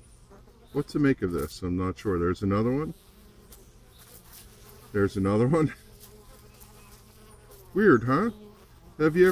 Buzzing insects overlap with a man speaking